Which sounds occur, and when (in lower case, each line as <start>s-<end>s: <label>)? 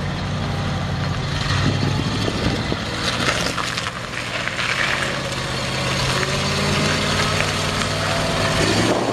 0.0s-9.1s: truck
0.0s-9.1s: wind
1.2s-1.9s: generic impact sounds
1.3s-9.1s: revving
1.7s-3.7s: wind noise (microphone)
2.3s-2.7s: generic impact sounds
3.1s-4.0s: generic impact sounds
4.2s-5.3s: generic impact sounds
6.0s-6.4s: generic impact sounds
7.2s-7.5s: generic impact sounds
7.3s-7.3s: tick
7.5s-7.5s: tick
7.7s-7.8s: tick
7.9s-7.9s: tick
8.3s-9.1s: wind noise (microphone)
8.4s-9.0s: generic impact sounds